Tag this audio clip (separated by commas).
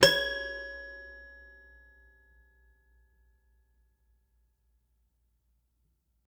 Keyboard (musical), Musical instrument, Piano, Music